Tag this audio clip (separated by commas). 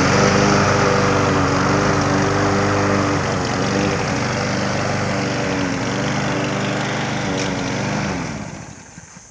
Lawn mower